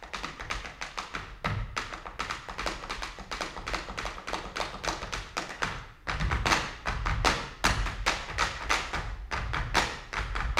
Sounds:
tap dancing

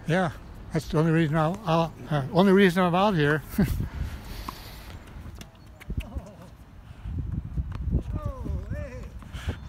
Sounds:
playing tennis

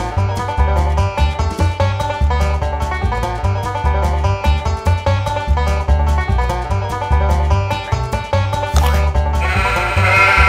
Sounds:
Bleat, Music

